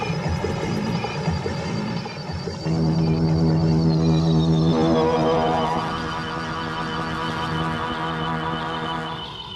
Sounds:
Sampler

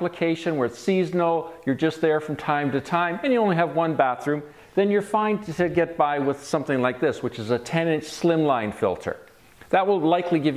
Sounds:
Speech

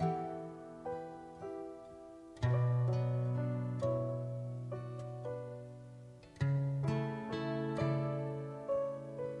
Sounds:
Pizzicato

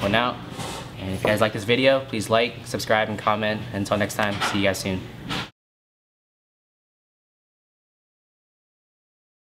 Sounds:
Speech

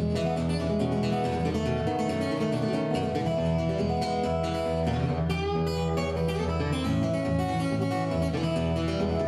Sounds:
Music

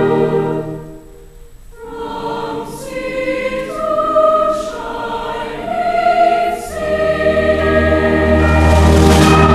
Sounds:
Music, Choir

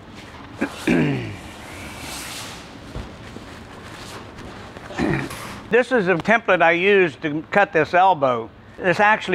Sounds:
Speech

